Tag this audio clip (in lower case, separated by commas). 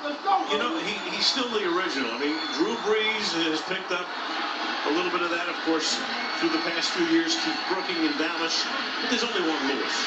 music, speech